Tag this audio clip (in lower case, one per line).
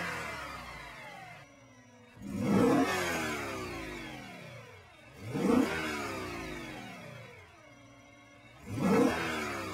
accelerating
vehicle